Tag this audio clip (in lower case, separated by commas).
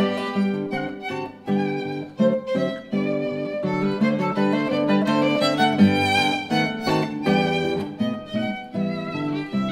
strum, fiddle, plucked string instrument, guitar, music, acoustic guitar, musical instrument